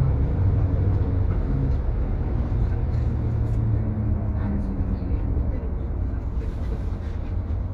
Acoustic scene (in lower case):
bus